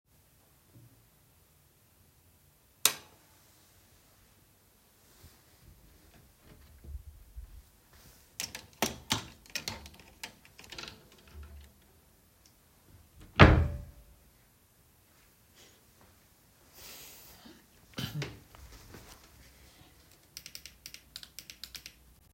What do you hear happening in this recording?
I turned on the light and opened the wardrobe. Some hangers clinked together. I closed the wardrobe, then closed the door. I coughed, sat down at my chair and started clicking the mouse.